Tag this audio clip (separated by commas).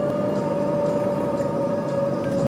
Vehicle